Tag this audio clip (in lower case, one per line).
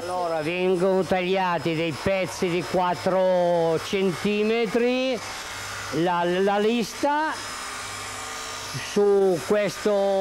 speech